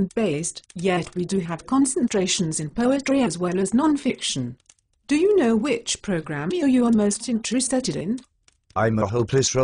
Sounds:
Speech

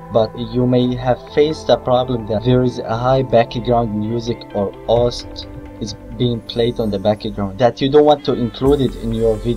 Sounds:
Speech, Music

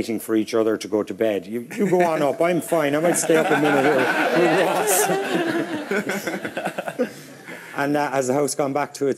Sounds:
Laughter, Speech

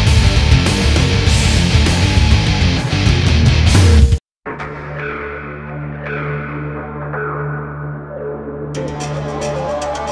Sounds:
Music

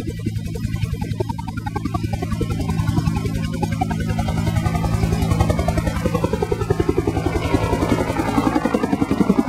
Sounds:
Vehicle

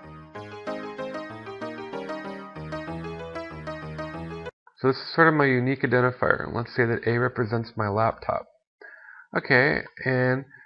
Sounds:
Speech, inside a small room, Music

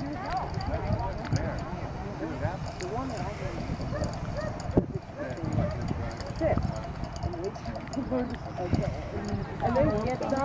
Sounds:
Animal, Speech, outside, rural or natural

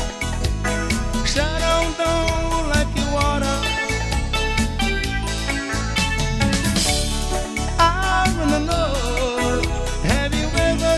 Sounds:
Music

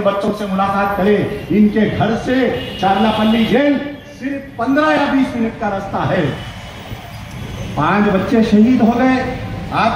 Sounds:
Narration, Speech, man speaking

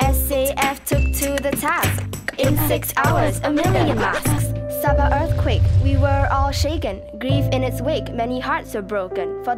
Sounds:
Speech, Music

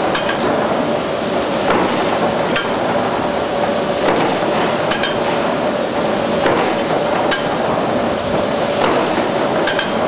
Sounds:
Tools

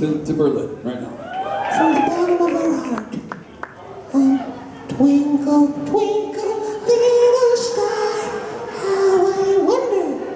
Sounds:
Speech

